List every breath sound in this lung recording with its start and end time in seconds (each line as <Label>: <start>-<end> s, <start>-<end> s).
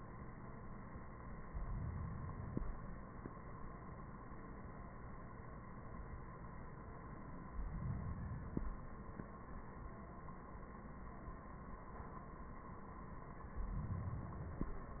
Inhalation: 1.50-3.00 s, 7.46-9.07 s, 13.47-15.00 s